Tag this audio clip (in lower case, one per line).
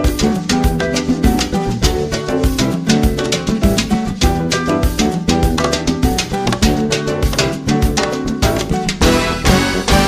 music
salsa music
happy music